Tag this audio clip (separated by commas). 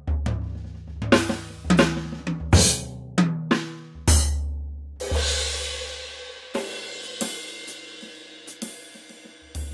Music